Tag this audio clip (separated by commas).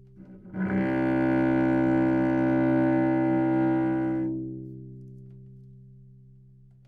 Bowed string instrument, Musical instrument, Music